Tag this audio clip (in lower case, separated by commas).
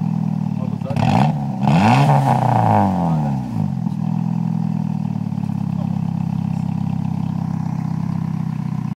speech